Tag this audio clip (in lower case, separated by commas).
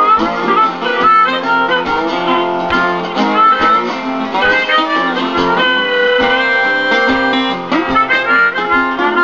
guitar, harmonica, music, musical instrument, plucked string instrument